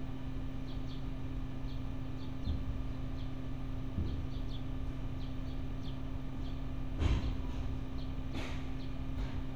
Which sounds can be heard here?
engine of unclear size